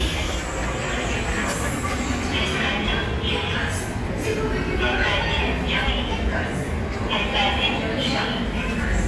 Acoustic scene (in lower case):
subway station